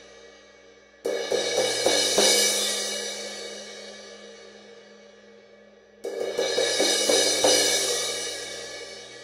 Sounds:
Hi-hat, Music, Musical instrument

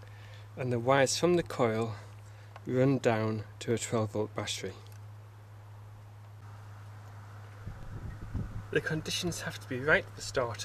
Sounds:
Speech

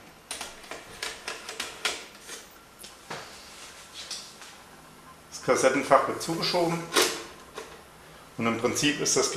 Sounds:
Speech

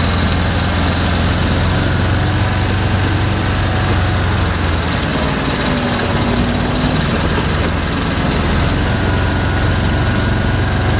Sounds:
Vehicle

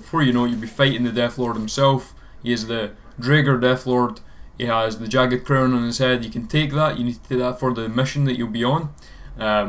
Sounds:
Speech

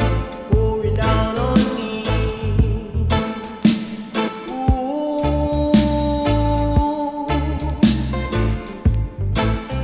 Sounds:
Music

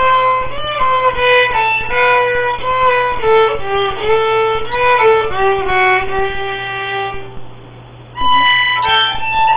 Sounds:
Music, fiddle, Musical instrument

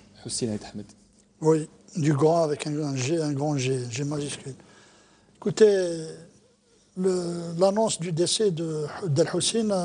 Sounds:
Speech

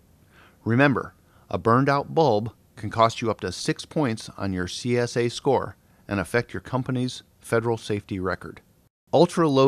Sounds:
Speech

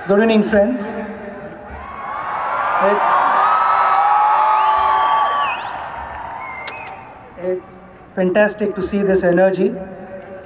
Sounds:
Male speech, Narration, Speech

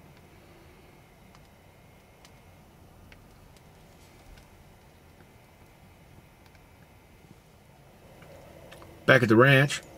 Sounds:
Speech

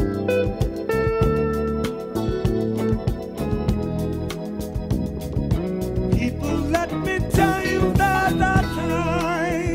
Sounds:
Funk, Music, Singing

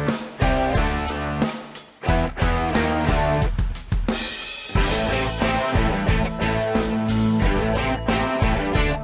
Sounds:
Musical instrument, Acoustic guitar, Electric guitar, Guitar, Plucked string instrument, Music

